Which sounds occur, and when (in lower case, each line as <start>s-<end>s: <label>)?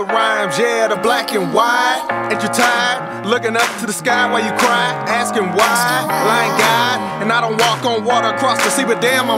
0.0s-9.3s: music
0.1s-2.0s: male singing
2.3s-3.0s: male singing
3.2s-7.0s: male singing
7.2s-9.3s: male singing